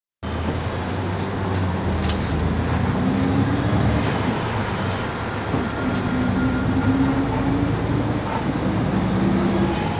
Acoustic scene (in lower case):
bus